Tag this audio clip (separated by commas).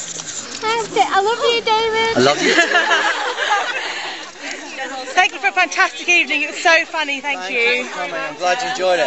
Speech